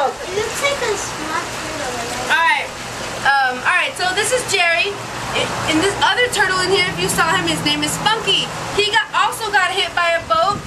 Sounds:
Speech

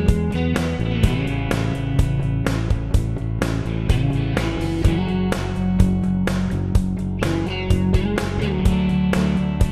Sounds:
Music

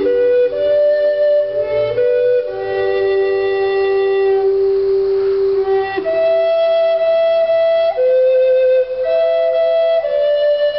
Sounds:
Flute, Music, woodwind instrument, Musical instrument, playing flute

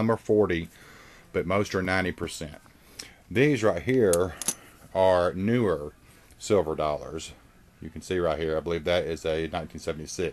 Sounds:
Speech

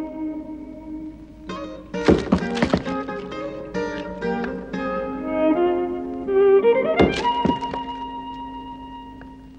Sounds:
Chop

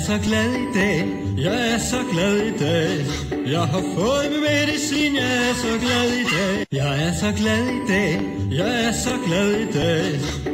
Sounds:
Music, Theme music

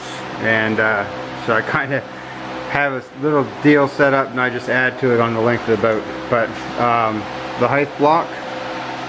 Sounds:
Speech

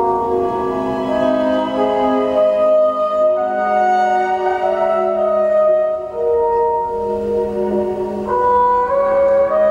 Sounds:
Music, Jazz

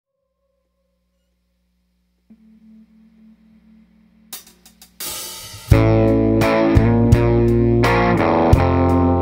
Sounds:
Music

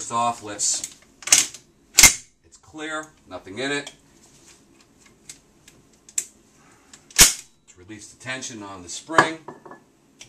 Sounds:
Speech

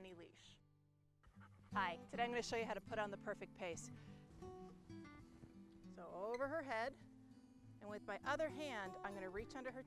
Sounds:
Music, Speech

